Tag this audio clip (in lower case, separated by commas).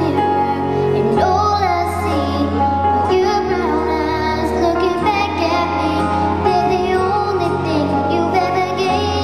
music, child singing